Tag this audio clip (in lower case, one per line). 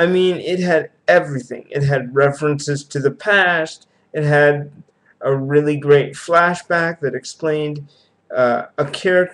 speech